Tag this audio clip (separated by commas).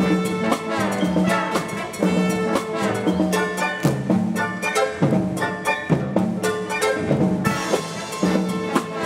Music